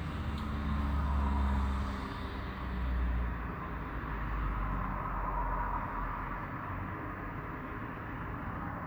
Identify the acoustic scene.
street